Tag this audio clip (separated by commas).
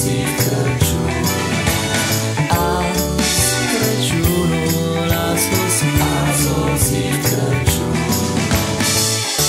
Christmas music, Music